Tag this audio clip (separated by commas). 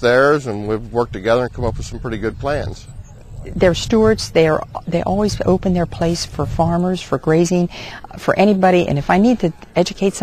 Speech